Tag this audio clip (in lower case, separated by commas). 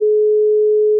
alarm, telephone